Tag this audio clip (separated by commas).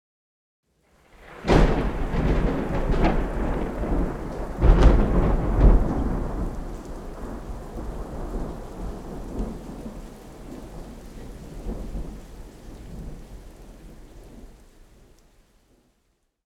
Rain, Thunderstorm, Water, Thunder